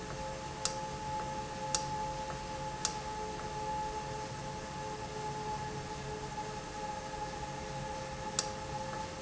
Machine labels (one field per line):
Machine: valve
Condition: normal